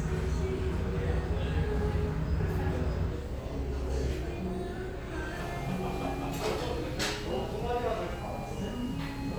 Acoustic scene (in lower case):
restaurant